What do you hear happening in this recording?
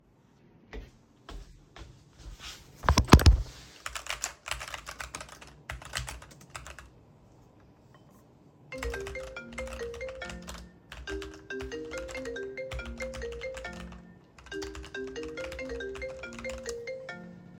I was sitting at my desk in the office working on my assignment. I typed on the keyboard for several seconds. While I was typing, my phone started ringing nearby.